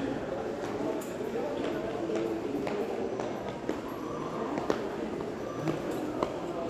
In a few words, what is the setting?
crowded indoor space